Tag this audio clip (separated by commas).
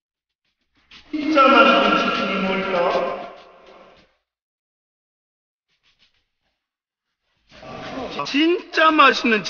Speech